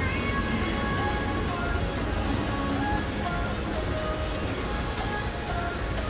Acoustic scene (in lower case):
street